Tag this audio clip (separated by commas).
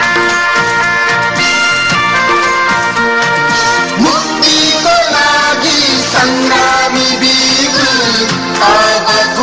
Music